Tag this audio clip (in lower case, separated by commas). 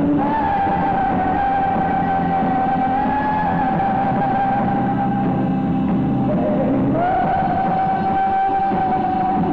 music